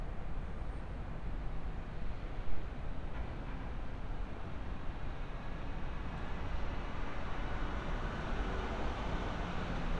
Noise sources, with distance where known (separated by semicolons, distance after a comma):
medium-sounding engine, near